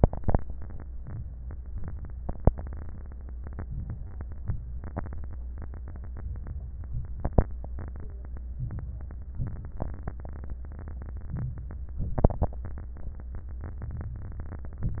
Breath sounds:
0.97-1.73 s: inhalation
1.71-2.47 s: exhalation
3.68-4.42 s: inhalation
4.44-5.39 s: exhalation
6.10-6.86 s: inhalation
6.88-7.58 s: exhalation
8.60-9.36 s: inhalation
9.39-10.15 s: exhalation
11.34-12.02 s: inhalation
12.02-12.70 s: exhalation

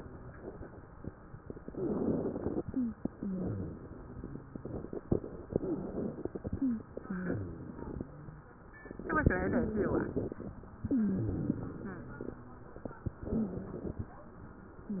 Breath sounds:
1.61-2.64 s: inhalation
2.68-3.00 s: wheeze
3.15-4.35 s: exhalation
3.15-4.86 s: wheeze
5.54-6.62 s: inhalation
5.60-5.90 s: wheeze
6.55-6.87 s: wheeze
7.04-8.10 s: exhalation
7.04-8.10 s: wheeze
9.13-10.38 s: inhalation
10.87-11.39 s: wheeze
10.87-12.39 s: exhalation
13.11-14.14 s: inhalation
13.11-14.14 s: wheeze

